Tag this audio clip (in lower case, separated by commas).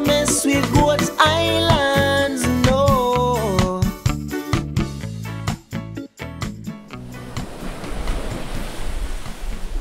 music